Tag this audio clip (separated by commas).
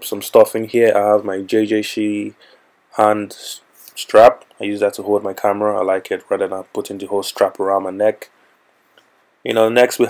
Speech